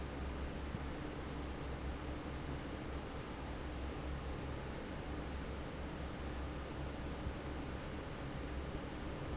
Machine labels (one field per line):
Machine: fan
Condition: normal